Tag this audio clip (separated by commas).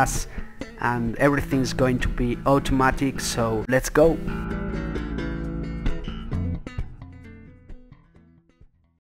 Speech, Music